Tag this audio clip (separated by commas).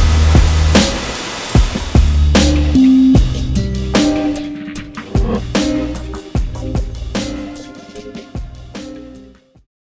Music, Printer